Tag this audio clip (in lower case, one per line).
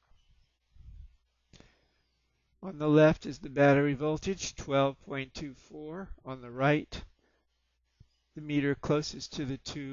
speech